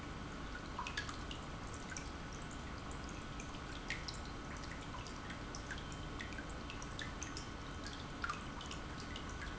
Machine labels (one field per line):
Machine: pump